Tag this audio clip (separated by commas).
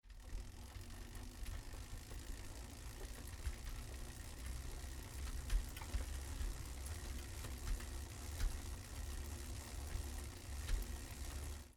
Bicycle, Vehicle